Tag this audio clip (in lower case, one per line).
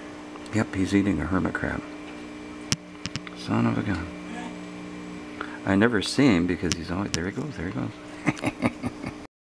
speech